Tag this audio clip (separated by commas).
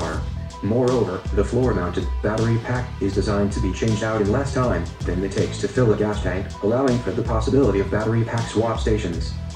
Speech, Music